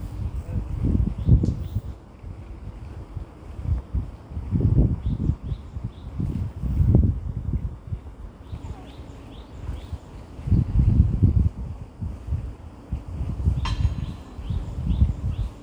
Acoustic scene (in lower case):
residential area